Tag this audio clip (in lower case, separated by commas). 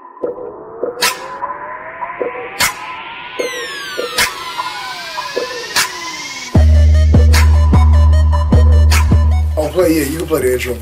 inside a small room, speech, music